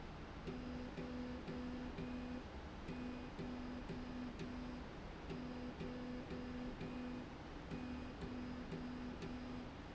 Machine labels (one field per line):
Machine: slide rail